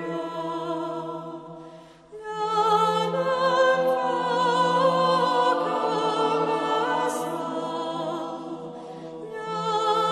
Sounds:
music

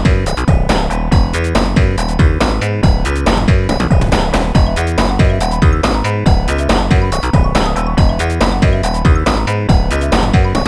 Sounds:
music

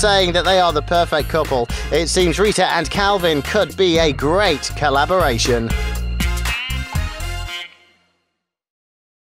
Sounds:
music
speech

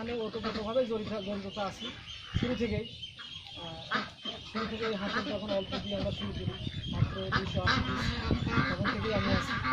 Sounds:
duck quacking

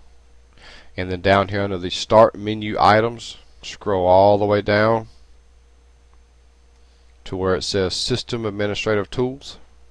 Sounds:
speech

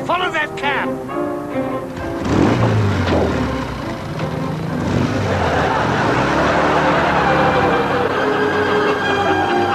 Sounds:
music
speech

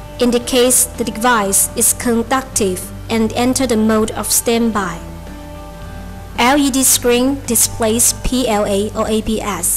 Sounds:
speech
music

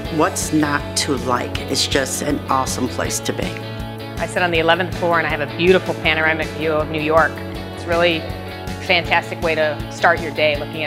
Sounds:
music
speech

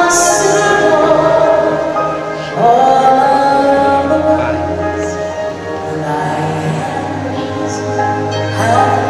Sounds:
female singing
music
speech

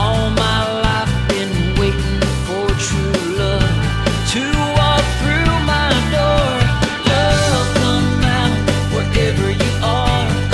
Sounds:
country
independent music
music
pop music

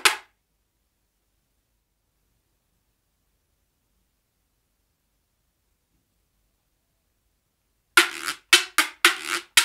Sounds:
playing guiro

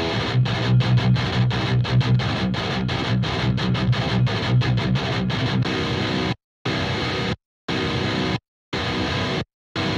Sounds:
musical instrument
plucked string instrument
strum
guitar
music

